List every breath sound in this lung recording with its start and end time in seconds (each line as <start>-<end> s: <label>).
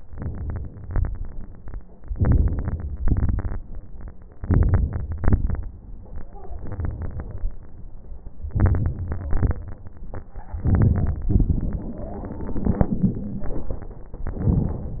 0.09-0.81 s: inhalation
0.09-0.81 s: crackles
0.86-1.74 s: exhalation
0.86-1.74 s: crackles
2.10-2.98 s: inhalation
2.10-2.98 s: crackles
3.00-3.58 s: exhalation
3.00-3.58 s: crackles
4.41-5.17 s: inhalation
4.41-5.17 s: crackles
5.19-5.85 s: exhalation
5.19-5.85 s: crackles
8.56-9.30 s: inhalation
8.56-9.30 s: crackles
9.32-9.93 s: exhalation
9.32-9.93 s: crackles
10.61-11.28 s: inhalation
10.61-11.28 s: crackles
11.31-12.97 s: exhalation
11.31-12.97 s: crackles
12.05-12.97 s: wheeze
14.31-15.00 s: inhalation
14.31-15.00 s: crackles